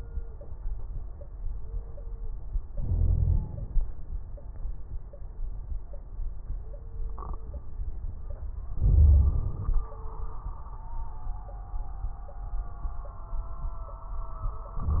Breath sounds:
2.72-3.40 s: wheeze
2.72-3.79 s: inhalation
8.79-9.58 s: wheeze
8.79-9.88 s: inhalation

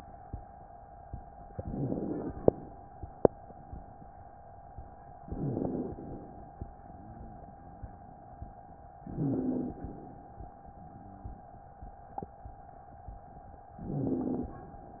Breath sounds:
1.59-2.50 s: inhalation
1.59-2.50 s: crackles
5.26-6.19 s: inhalation
5.26-6.19 s: crackles
9.05-9.98 s: inhalation
9.05-9.98 s: exhalation
13.73-14.66 s: inhalation
13.73-14.66 s: wheeze

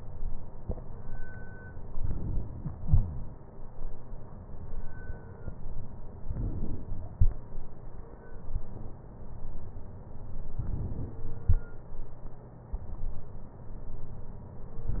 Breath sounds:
1.97-2.82 s: inhalation
6.26-7.10 s: inhalation
10.56-11.40 s: inhalation

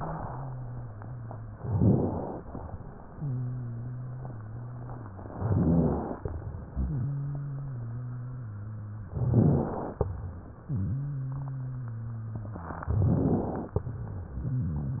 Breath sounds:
0.00-1.59 s: wheeze
1.59-2.39 s: rhonchi
1.59-2.40 s: inhalation
2.44-5.34 s: exhalation
3.14-5.34 s: wheeze
5.32-6.18 s: rhonchi
5.34-6.17 s: inhalation
6.23-9.09 s: exhalation
6.77-9.09 s: wheeze
9.09-10.07 s: rhonchi
9.11-10.08 s: inhalation
10.10-12.78 s: exhalation
10.66-12.78 s: wheeze
12.82-13.82 s: rhonchi
12.82-13.79 s: inhalation
13.89-15.00 s: exhalation
14.47-15.00 s: wheeze

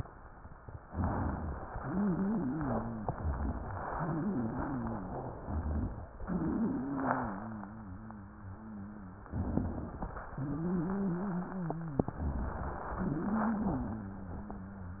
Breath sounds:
0.82-1.65 s: crackles
0.84-1.69 s: inhalation
1.69-3.07 s: exhalation
1.69-3.07 s: wheeze
3.05-3.83 s: crackles
3.07-3.85 s: inhalation
3.94-5.34 s: exhalation
3.94-5.34 s: wheeze
5.42-6.20 s: inhalation
5.42-6.20 s: crackles
6.22-9.30 s: exhalation
6.22-9.30 s: wheeze
9.34-10.10 s: inhalation
9.34-10.10 s: crackles
10.32-12.07 s: exhalation
10.32-12.07 s: wheeze
12.15-12.91 s: inhalation
12.15-12.91 s: crackles
12.97-15.00 s: exhalation
12.97-15.00 s: wheeze

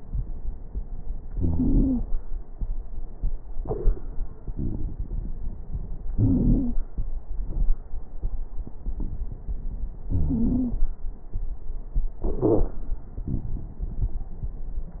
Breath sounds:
1.35-2.04 s: wheeze
10.09-10.79 s: wheeze
12.44-12.71 s: wheeze

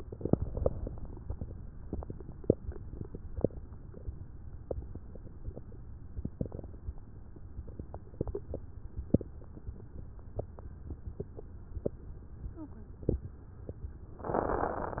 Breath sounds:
14.24-15.00 s: inhalation

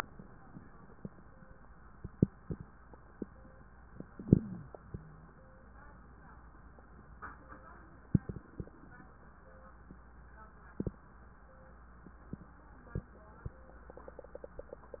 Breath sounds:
4.13-4.68 s: inhalation
4.13-4.68 s: wheeze
4.73-5.28 s: exhalation
4.73-5.28 s: wheeze

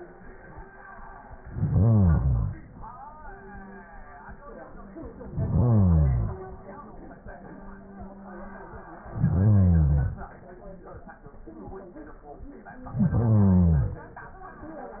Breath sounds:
1.50-2.63 s: inhalation
5.28-6.42 s: inhalation
9.15-10.28 s: inhalation
12.90-14.03 s: inhalation

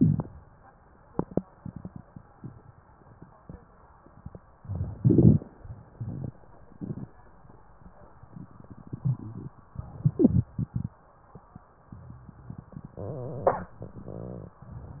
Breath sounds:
4.58-5.47 s: crackles
4.59-5.49 s: inhalation
5.48-6.38 s: exhalation
5.48-6.38 s: crackles
9.74-10.44 s: inhalation
9.74-10.44 s: crackles
10.49-11.20 s: exhalation
10.49-11.20 s: crackles

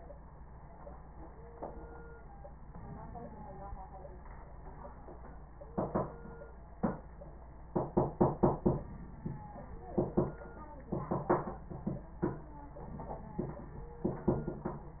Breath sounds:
2.65-3.85 s: inhalation
8.80-10.00 s: inhalation
12.82-14.03 s: inhalation

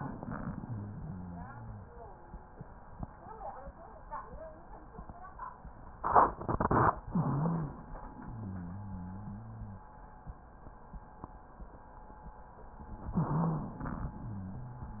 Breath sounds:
0.54-1.89 s: wheeze
5.96-6.99 s: inhalation
7.07-9.92 s: exhalation
7.08-7.78 s: wheeze
8.30-9.83 s: wheeze
13.05-14.16 s: inhalation
13.14-13.78 s: wheeze
14.16-15.00 s: exhalation
14.16-15.00 s: wheeze

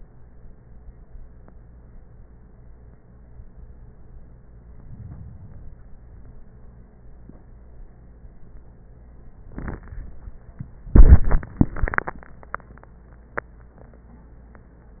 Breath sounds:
4.54-6.04 s: inhalation

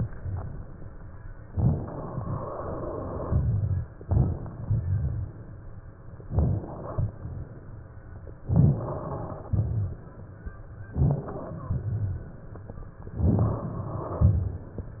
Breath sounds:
1.54-2.24 s: inhalation
2.24-3.92 s: exhalation
3.96-4.66 s: crackles
3.99-4.64 s: inhalation
4.64-5.77 s: exhalation
6.22-7.18 s: inhalation
8.41-9.46 s: crackles
8.42-9.47 s: inhalation
9.46-10.51 s: exhalation
10.89-11.72 s: inhalation
11.69-12.61 s: exhalation
13.11-13.81 s: inhalation

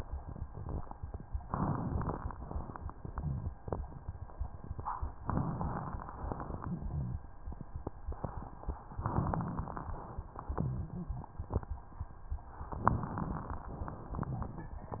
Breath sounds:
1.43-2.35 s: inhalation
1.43-2.35 s: crackles
2.35-3.94 s: exhalation
3.15-3.55 s: rhonchi
5.22-6.16 s: inhalation
5.22-6.16 s: crackles
6.17-7.29 s: exhalation
6.17-7.29 s: crackles
6.70-7.22 s: rhonchi
9.00-9.93 s: inhalation
9.00-9.93 s: crackles
9.95-11.74 s: exhalation
10.47-11.26 s: rhonchi
12.69-13.74 s: inhalation
12.69-13.74 s: crackles

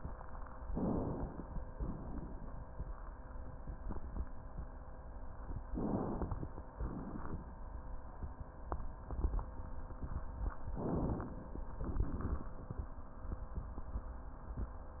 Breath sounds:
0.57-1.69 s: inhalation
1.69-2.71 s: exhalation
5.69-6.72 s: inhalation
6.72-7.57 s: exhalation
10.74-11.73 s: inhalation
11.73-12.56 s: exhalation

